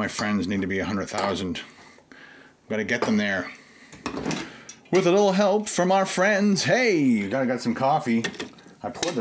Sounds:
dishes, pots and pans

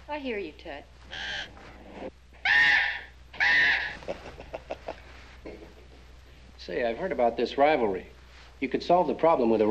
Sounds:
inside a small room, Speech

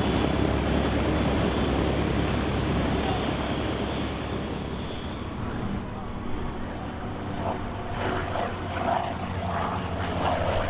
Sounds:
airplane flyby

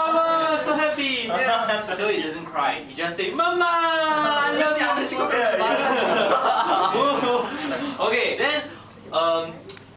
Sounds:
Speech

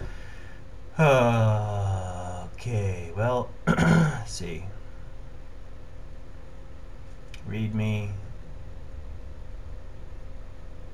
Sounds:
Male speech, Speech

